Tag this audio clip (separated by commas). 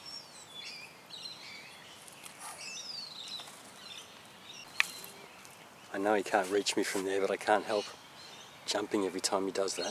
Speech, outside, rural or natural, Snake, Animal